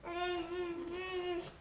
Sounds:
Human voice, Speech

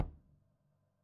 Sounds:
Bass drum, Tap, Percussion, Musical instrument, Drum, Music

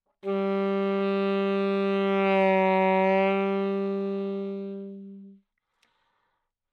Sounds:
Musical instrument, Music, Wind instrument

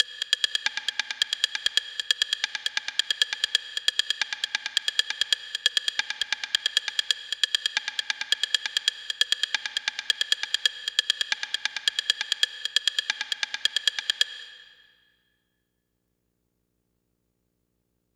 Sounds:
Wood

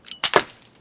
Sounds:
Shatter, Glass

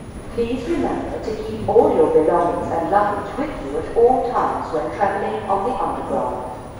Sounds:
metro, Vehicle, Rail transport

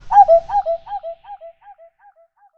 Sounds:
Bird, Animal, Bird vocalization, Wild animals

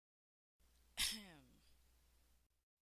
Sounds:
Cough, Respiratory sounds

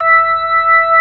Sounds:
Music, Organ, Musical instrument, Keyboard (musical)

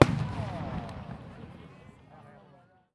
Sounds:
Explosion, Fireworks

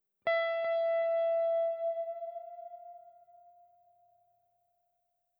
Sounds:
Music, Guitar, Musical instrument, Plucked string instrument

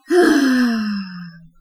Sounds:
Human voice, Sigh

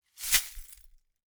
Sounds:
Glass

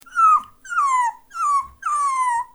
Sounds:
Animal, Dog, Domestic animals

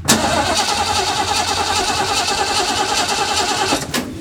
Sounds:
Car, Engine starting, Motor vehicle (road), Vehicle, Engine

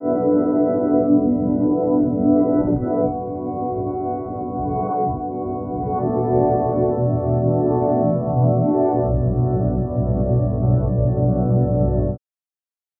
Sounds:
Organ, Music, Keyboard (musical), Musical instrument

